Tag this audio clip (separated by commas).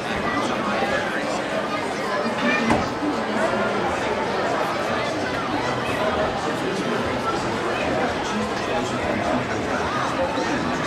Speech